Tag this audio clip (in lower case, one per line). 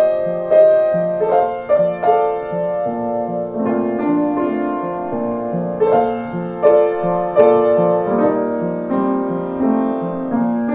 music